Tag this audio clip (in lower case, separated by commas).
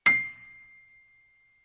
keyboard (musical), piano, music, musical instrument